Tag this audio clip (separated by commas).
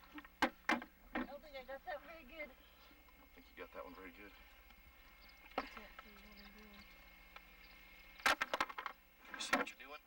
Speech